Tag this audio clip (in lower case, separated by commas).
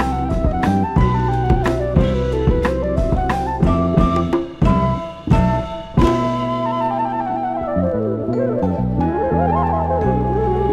jazz